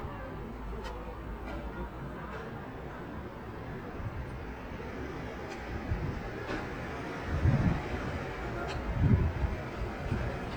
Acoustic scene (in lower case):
residential area